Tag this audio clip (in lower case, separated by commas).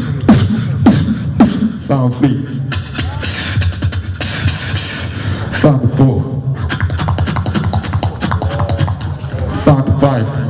beat boxing